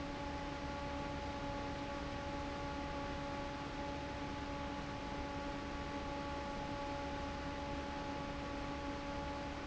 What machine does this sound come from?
fan